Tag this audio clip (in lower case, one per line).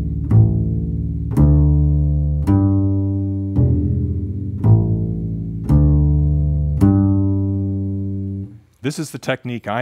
playing double bass